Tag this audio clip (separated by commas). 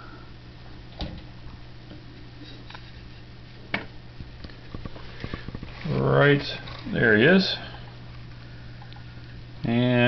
Speech